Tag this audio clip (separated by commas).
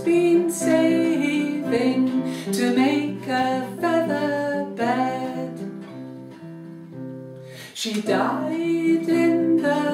Music